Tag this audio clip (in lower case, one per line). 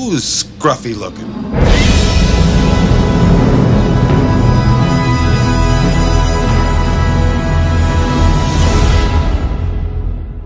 theme music